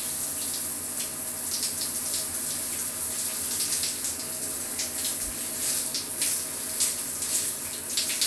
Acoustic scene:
restroom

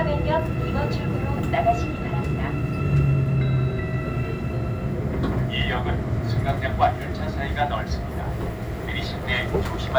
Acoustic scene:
subway train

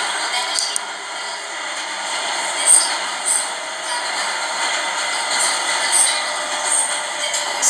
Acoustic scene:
subway train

